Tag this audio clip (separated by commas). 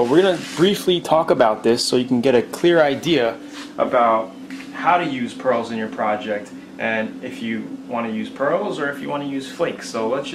Speech